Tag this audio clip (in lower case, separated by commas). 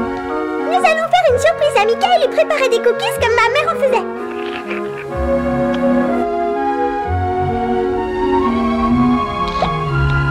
music, speech